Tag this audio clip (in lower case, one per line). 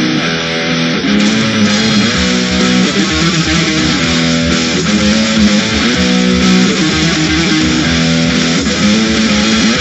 strum
plucked string instrument
electric guitar
guitar
musical instrument
music
acoustic guitar